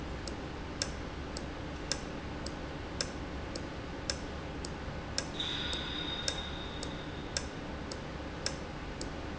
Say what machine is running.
valve